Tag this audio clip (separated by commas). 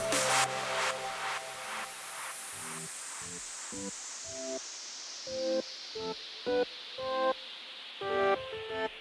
Music